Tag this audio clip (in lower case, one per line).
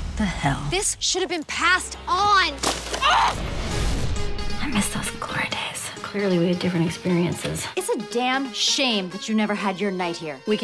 speech
music